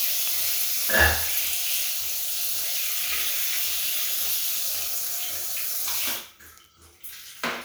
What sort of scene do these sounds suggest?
restroom